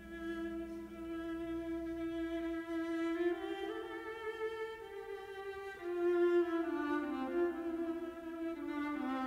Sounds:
Violin, Bowed string instrument

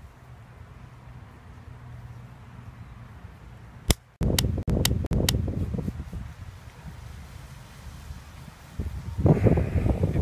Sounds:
Wind, Wind noise (microphone)

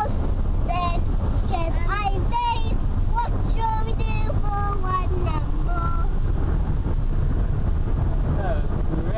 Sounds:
Car, Vehicle, Speech, Child singing

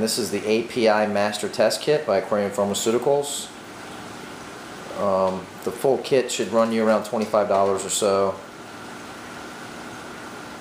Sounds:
Speech

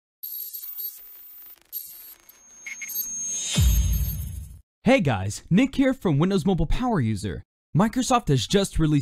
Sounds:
Speech, Music

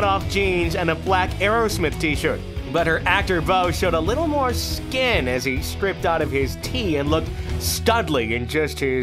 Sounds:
Speech, Music

